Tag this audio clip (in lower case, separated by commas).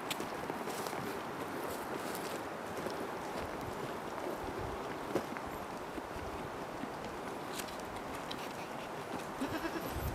bleat